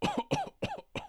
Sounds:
cough
respiratory sounds

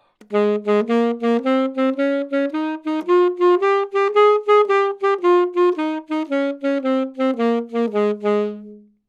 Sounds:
woodwind instrument
musical instrument
music

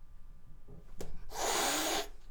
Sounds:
animal
hiss
domestic animals
cat

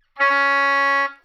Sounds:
wind instrument
music
musical instrument

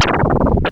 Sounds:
musical instrument
music
scratching (performance technique)

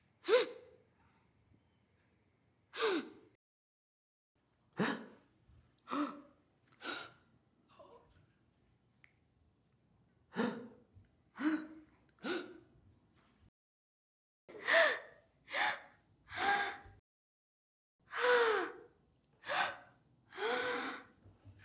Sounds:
gasp
respiratory sounds
breathing

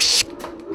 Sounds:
tools

